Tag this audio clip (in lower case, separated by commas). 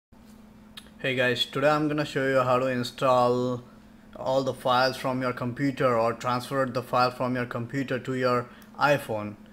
speech, inside a small room